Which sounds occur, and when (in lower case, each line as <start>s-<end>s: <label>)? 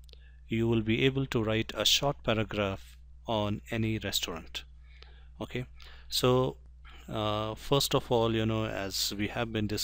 0.0s-0.1s: human sounds
0.0s-9.8s: background noise
0.2s-0.4s: breathing
0.5s-2.9s: man speaking
3.1s-4.6s: man speaking
4.9s-5.3s: breathing
5.4s-5.7s: man speaking
5.8s-6.1s: breathing
6.0s-6.6s: man speaking
6.8s-7.1s: breathing
7.1s-9.8s: man speaking